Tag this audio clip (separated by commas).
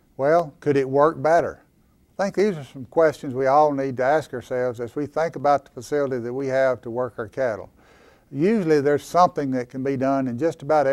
Speech